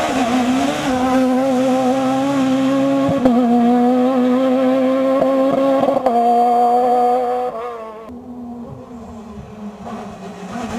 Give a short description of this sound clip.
Vehicle running continuously